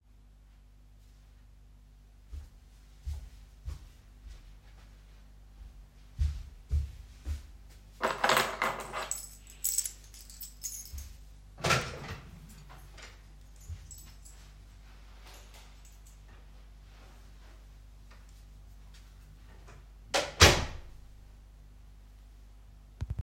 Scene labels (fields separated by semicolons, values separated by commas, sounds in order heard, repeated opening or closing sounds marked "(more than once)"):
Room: hallway; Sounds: footsteps, keys, door (more than once)